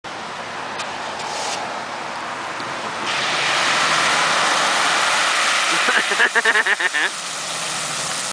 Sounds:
Slosh, Water

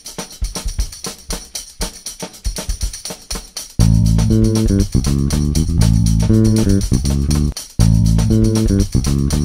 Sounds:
Music

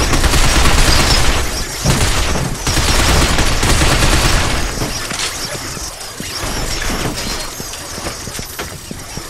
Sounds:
inside a large room or hall

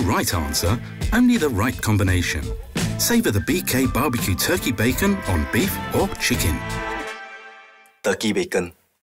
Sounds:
Speech, Music

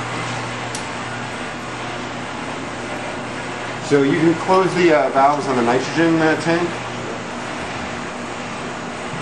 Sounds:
Speech

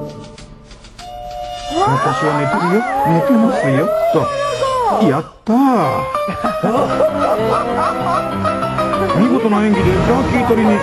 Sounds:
Music, Speech

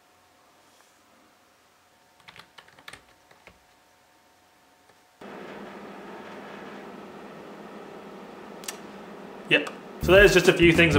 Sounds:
Computer keyboard, Typing

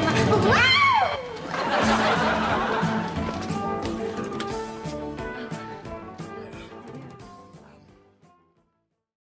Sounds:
Music

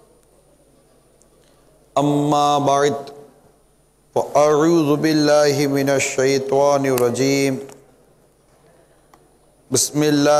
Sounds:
man speaking, Speech

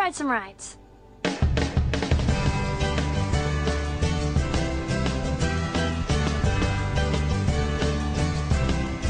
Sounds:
Speech, Music

